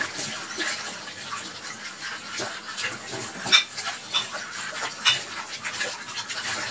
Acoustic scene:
kitchen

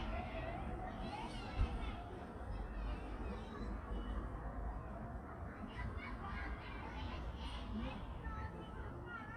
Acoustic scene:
park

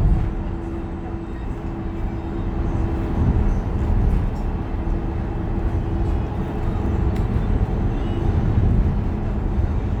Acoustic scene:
bus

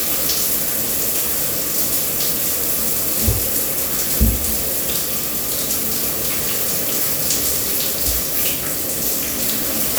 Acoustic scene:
restroom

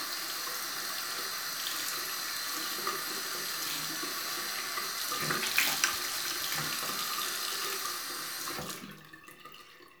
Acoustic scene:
restroom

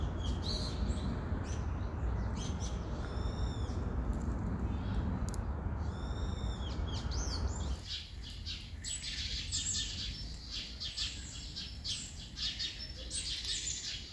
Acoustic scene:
park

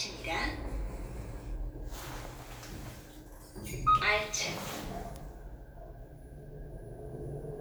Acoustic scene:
elevator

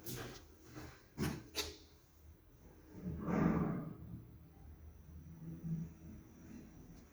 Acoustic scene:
elevator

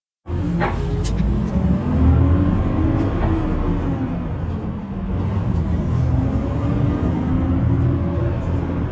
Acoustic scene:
bus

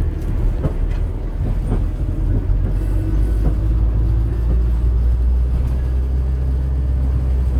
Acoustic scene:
bus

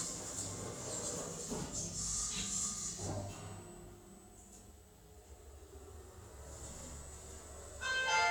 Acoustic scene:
elevator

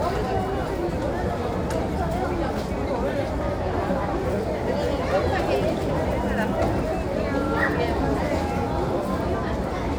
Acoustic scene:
crowded indoor space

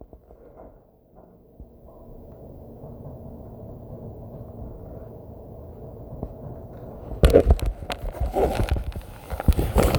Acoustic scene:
elevator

